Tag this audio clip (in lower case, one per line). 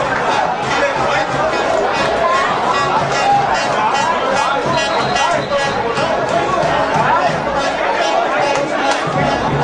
speech